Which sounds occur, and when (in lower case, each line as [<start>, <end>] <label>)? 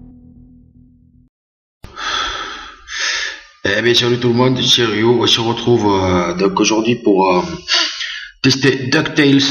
[0.01, 1.30] sound effect
[1.77, 3.57] breathing
[3.56, 7.41] man speaking
[7.54, 8.45] human voice
[8.43, 9.50] man speaking